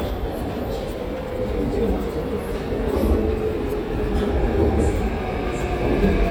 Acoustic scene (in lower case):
subway station